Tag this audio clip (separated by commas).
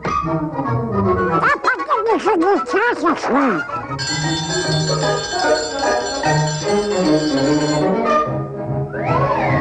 inside a small room, Music, Bell, Speech